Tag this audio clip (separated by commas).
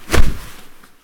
swish